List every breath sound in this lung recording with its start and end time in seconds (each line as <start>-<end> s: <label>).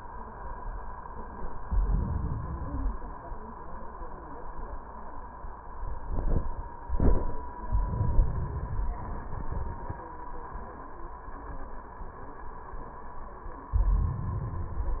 1.50-2.51 s: inhalation
2.50-3.51 s: exhalation
7.70-8.90 s: inhalation
8.97-10.14 s: exhalation
13.75-14.95 s: inhalation